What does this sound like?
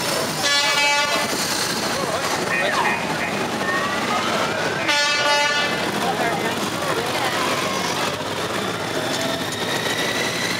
A horn toots, and engines are running